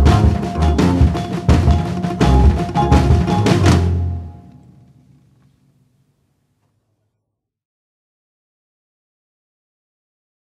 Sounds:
Timpani, Music

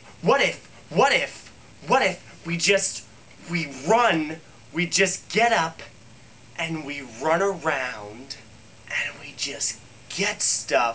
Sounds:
Speech

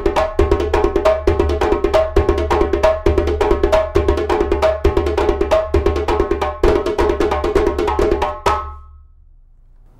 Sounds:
playing djembe

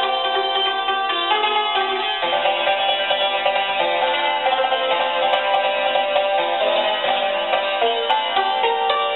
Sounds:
Musical instrument, inside a small room, Music

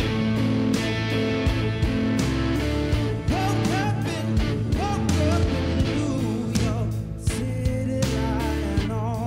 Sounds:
Plucked string instrument, Music, Musical instrument, Electric guitar, Guitar

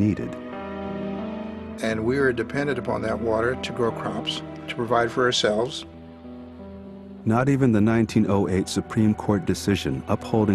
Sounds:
Speech, Music

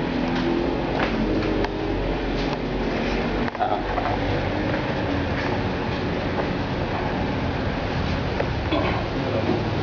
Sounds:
Vehicle

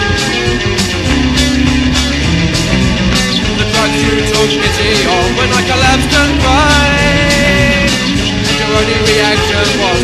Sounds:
Music, Punk rock, Psychedelic rock, Rock music

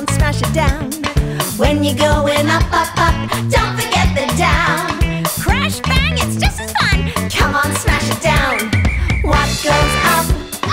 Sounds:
Music

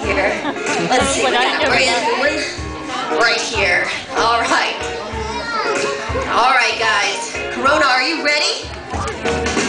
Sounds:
Speech, Music

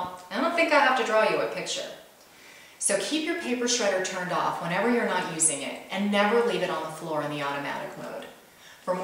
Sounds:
Speech

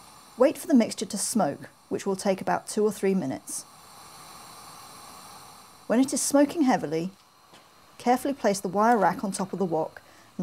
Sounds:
Speech

